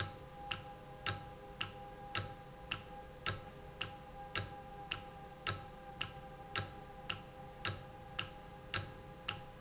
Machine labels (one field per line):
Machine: valve